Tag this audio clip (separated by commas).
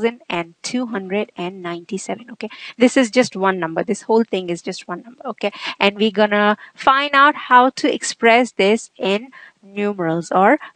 Speech